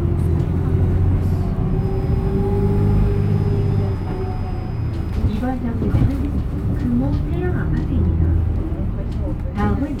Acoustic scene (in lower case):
bus